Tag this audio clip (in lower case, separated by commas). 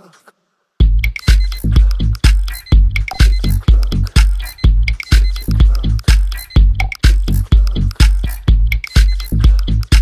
tick-tock, music